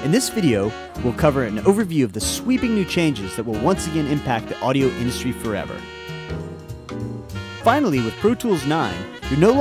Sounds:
music
speech

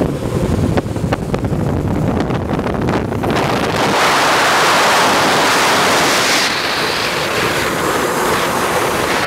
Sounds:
skateboard

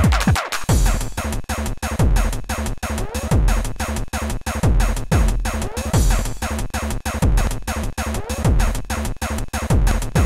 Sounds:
static
music

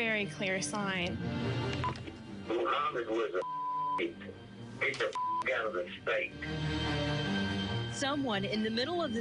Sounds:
music
speech

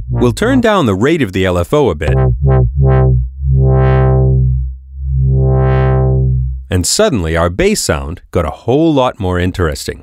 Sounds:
synthesizer
speech
music

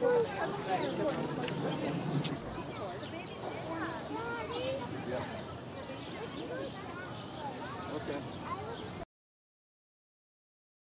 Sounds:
zebra braying

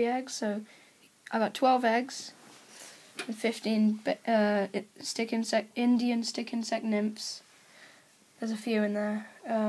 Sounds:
speech

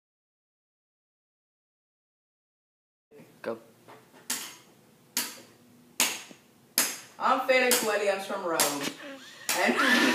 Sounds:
speech

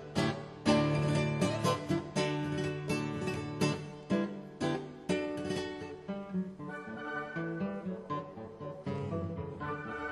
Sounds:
guitar
musical instrument
acoustic guitar
music
bass guitar
orchestra
plucked string instrument
strum

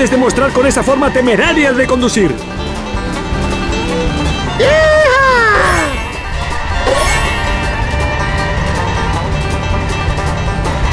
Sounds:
music
speech

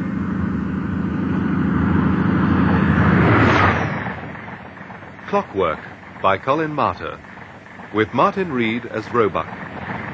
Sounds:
rail transport
speech
train
vehicle

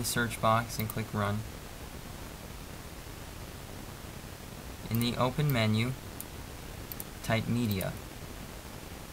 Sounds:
speech

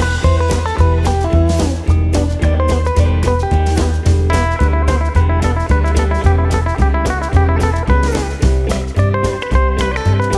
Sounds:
slide guitar
music

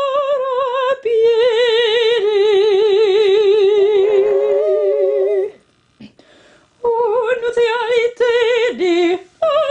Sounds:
female singing

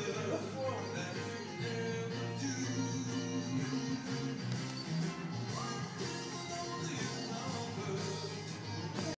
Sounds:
music

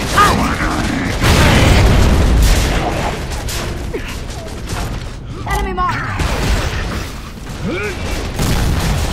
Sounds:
speech

